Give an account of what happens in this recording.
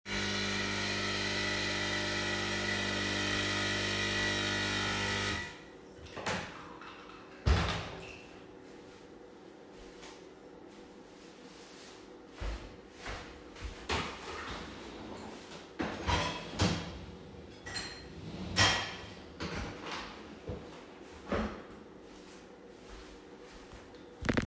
I made myself a coffee at the coffee machine. Then I closed the kitchen door and went through the kitchen to open the dishwasher.